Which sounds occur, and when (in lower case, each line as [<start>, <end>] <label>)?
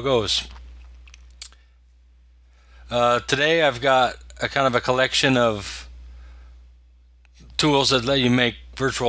[0.00, 0.48] man speaking
[0.00, 9.05] mechanisms
[0.48, 0.61] generic impact sounds
[0.82, 0.87] generic impact sounds
[1.06, 1.18] generic impact sounds
[1.40, 1.52] human sounds
[1.50, 1.81] breathing
[2.48, 2.89] breathing
[2.89, 4.20] man speaking
[4.39, 5.89] man speaking
[6.06, 6.78] breathing
[7.21, 7.29] tick
[7.34, 7.58] generic impact sounds
[7.60, 8.61] man speaking
[8.75, 9.05] man speaking